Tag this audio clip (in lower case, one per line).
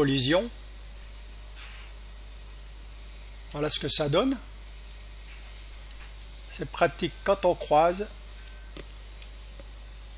speech